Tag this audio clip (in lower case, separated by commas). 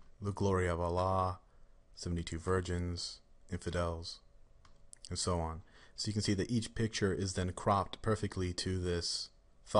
speech